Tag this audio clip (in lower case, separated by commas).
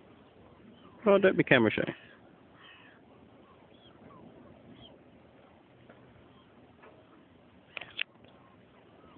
speech, animal